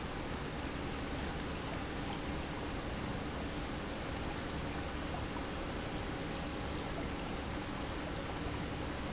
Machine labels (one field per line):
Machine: pump